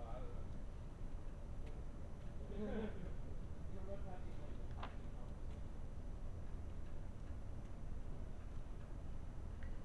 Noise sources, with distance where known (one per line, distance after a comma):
person or small group talking